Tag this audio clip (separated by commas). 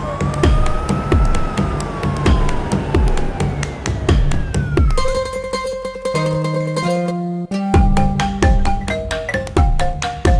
Music